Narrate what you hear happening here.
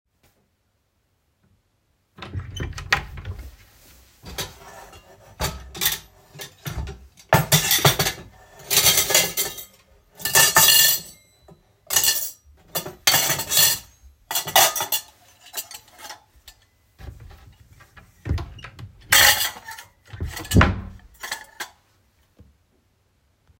I opened my wardrobe to get ready for the kitchen. I placed a plate and some cutlery into a pan, picked up the pan, and closed the wardrobe door.